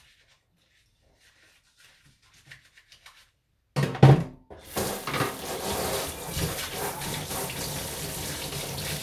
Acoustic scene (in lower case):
kitchen